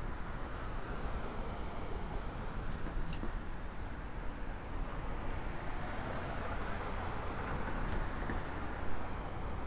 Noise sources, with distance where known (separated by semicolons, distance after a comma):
medium-sounding engine, near